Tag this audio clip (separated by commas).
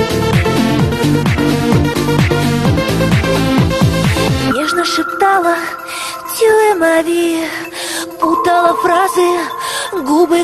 Music, Trance music